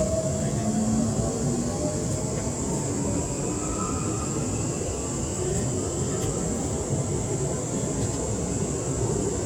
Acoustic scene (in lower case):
subway train